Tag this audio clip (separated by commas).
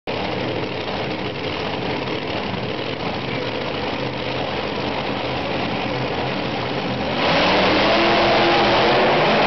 Truck, Vehicle